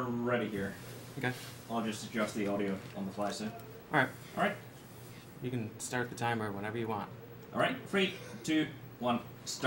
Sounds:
speech

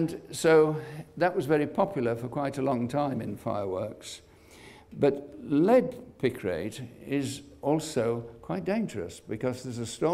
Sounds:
speech

